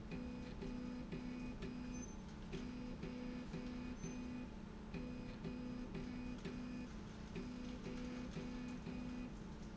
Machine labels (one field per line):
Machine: slide rail